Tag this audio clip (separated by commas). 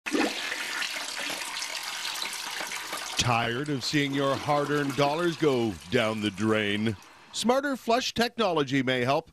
Speech, Toilet flush